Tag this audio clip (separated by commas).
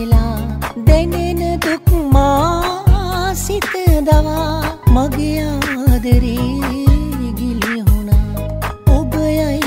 Music